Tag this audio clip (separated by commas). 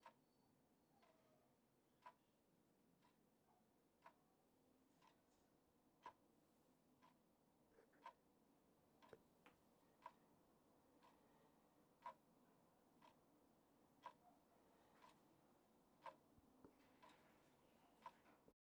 Clock, Mechanisms